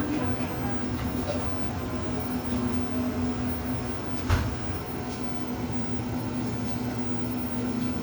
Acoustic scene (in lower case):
cafe